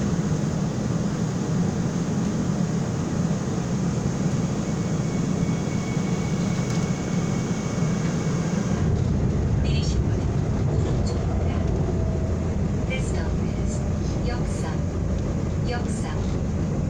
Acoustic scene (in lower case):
subway train